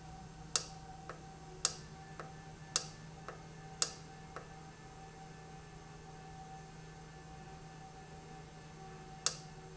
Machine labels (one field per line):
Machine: valve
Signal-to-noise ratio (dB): 6 dB